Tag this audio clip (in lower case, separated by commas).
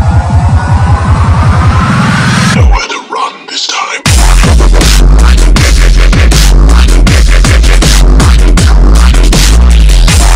music, electronic music, dubstep